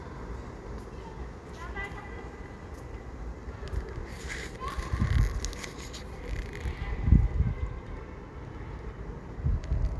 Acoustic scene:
residential area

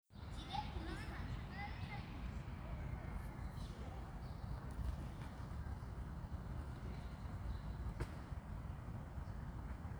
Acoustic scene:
park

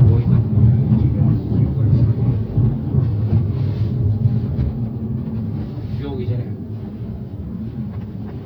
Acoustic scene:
car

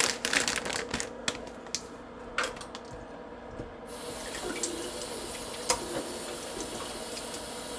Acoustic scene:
kitchen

